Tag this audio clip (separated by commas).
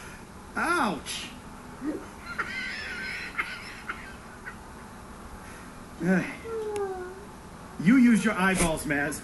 Speech